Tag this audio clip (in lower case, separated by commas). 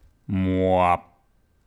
human voice, male speech, speech